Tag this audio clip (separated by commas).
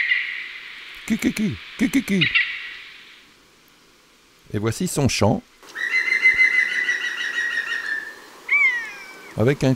Speech, Bird